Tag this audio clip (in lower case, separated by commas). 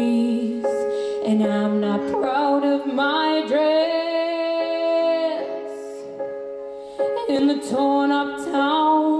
music, female singing